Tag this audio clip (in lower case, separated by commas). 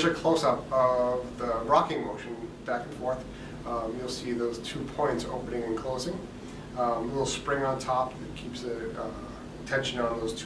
speech